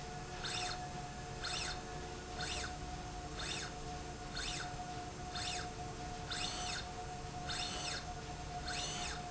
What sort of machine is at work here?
slide rail